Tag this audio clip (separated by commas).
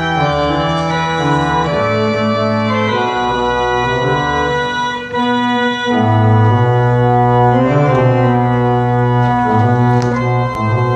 Musical instrument, Music, Keyboard (musical), Piano